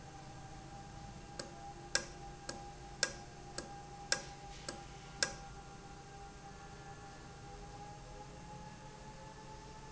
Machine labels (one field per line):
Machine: valve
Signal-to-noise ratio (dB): 6 dB